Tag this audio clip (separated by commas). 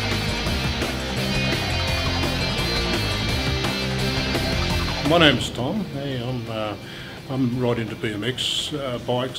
Music, Speech